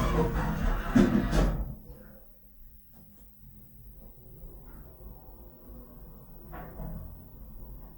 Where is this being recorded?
in an elevator